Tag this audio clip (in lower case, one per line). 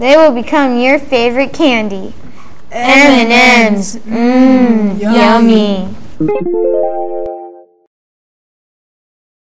music
speech